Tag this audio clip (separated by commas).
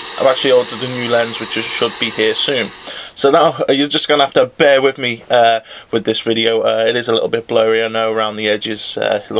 Speech